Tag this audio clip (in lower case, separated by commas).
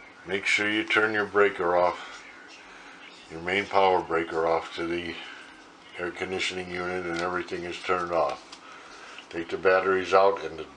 speech